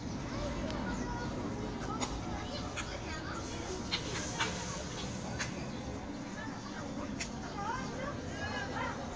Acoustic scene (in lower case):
park